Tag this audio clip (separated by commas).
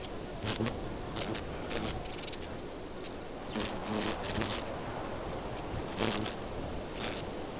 Insect, Animal, Wild animals